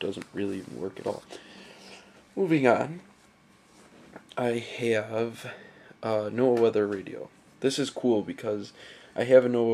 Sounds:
speech
inside a small room

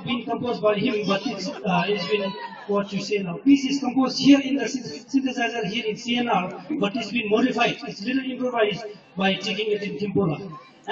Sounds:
speech

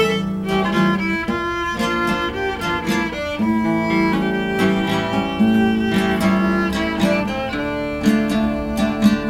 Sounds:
violin
musical instrument
music

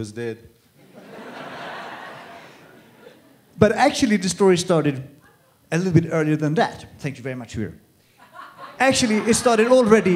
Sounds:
speech

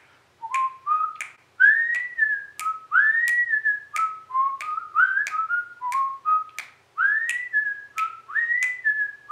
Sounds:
people whistling

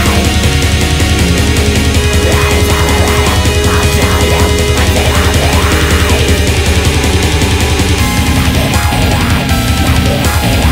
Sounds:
music

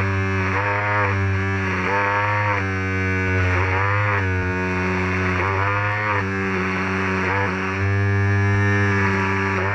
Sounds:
cutting hair with electric trimmers

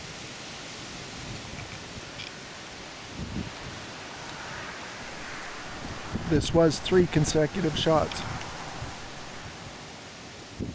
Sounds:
speech

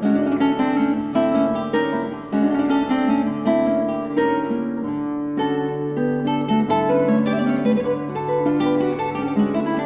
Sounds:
playing acoustic guitar
music
guitar
musical instrument
plucked string instrument
acoustic guitar

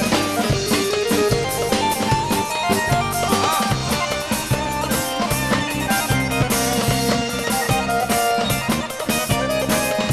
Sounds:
music

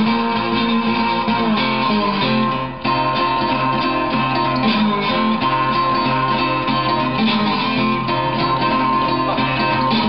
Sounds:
musical instrument
music
plucked string instrument
acoustic guitar
country
strum
guitar

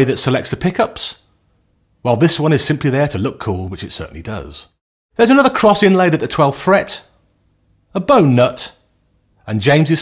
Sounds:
speech

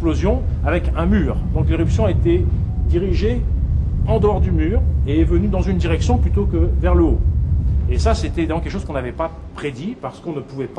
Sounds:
volcano explosion

